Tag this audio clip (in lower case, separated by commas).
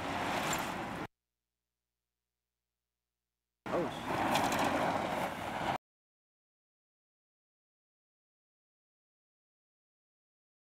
vehicle, motor vehicle (road), car, speech